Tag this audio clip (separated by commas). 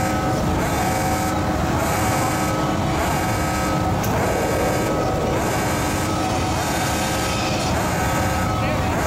Speech